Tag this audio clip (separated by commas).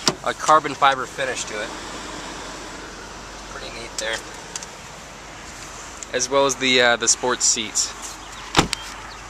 Speech, outside, rural or natural